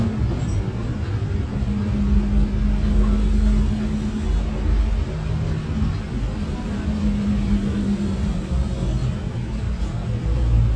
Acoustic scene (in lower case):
bus